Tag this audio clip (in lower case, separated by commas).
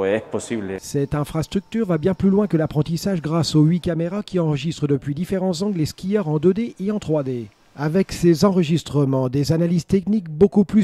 speech